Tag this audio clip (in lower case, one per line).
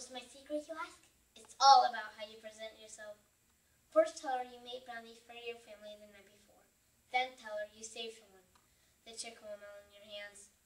speech
monologue